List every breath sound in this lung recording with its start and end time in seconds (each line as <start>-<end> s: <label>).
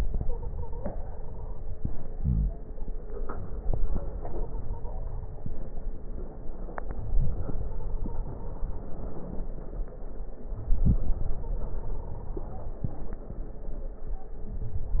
0.00-2.13 s: inhalation
0.18-1.56 s: stridor
2.12-2.60 s: wheeze
3.05-5.36 s: inhalation
4.17-5.29 s: stridor
6.77-8.92 s: inhalation
7.59-8.71 s: stridor
10.41-12.79 s: inhalation
11.34-12.46 s: stridor
14.25-15.00 s: inhalation
14.25-15.00 s: crackles